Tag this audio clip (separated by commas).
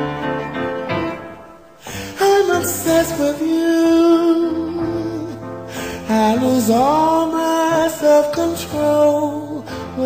Music